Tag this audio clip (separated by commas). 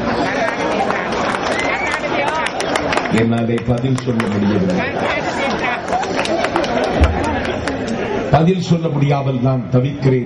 monologue, Speech, man speaking